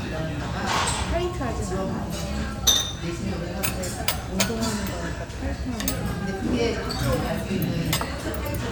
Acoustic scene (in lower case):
restaurant